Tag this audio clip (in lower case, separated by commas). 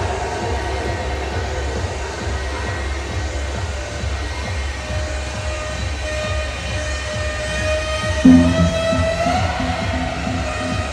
pop music, music